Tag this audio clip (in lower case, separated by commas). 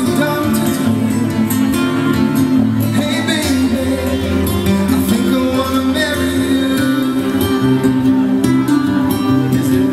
music, male singing